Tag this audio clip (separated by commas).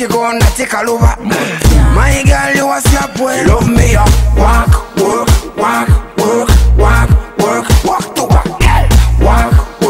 Music